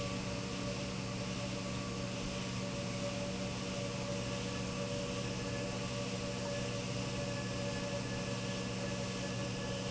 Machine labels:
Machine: pump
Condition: normal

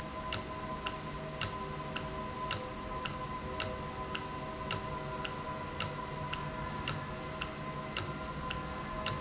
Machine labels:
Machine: valve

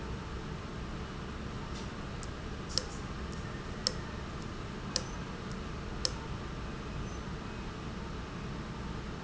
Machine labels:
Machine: valve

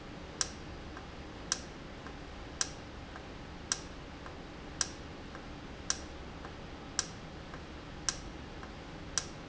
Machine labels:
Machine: valve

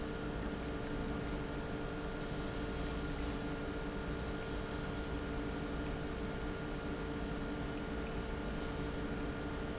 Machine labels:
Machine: pump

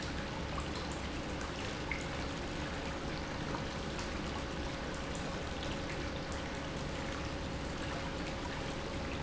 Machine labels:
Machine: pump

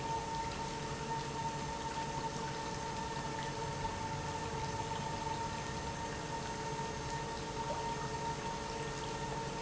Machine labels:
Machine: pump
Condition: normal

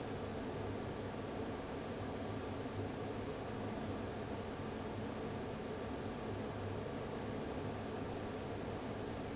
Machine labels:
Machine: fan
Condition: abnormal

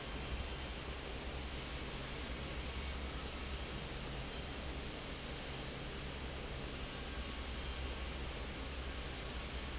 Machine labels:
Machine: fan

